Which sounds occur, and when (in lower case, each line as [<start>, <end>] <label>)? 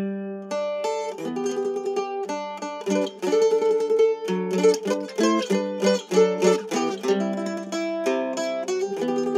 [0.00, 9.35] music